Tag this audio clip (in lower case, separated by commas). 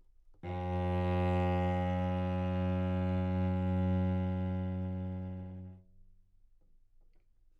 bowed string instrument, musical instrument, music